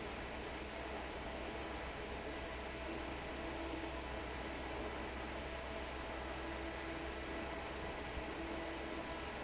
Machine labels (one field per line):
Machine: fan